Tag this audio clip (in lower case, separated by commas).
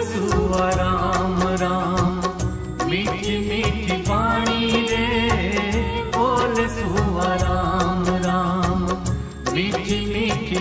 music of bollywood, mantra, music, folk music